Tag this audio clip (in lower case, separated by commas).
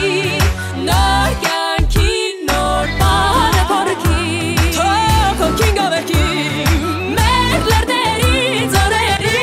pop music, music